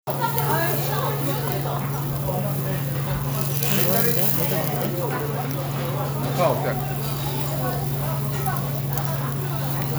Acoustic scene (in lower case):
restaurant